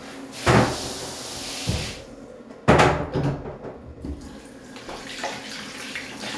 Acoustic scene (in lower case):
restroom